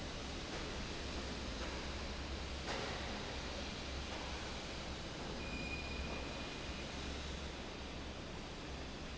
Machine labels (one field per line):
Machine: fan